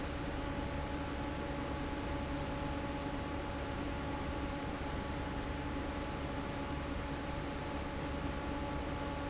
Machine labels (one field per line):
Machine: fan